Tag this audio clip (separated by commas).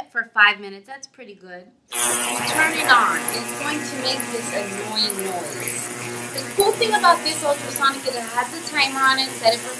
Speech